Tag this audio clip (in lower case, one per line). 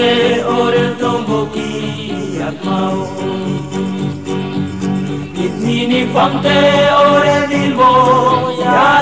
music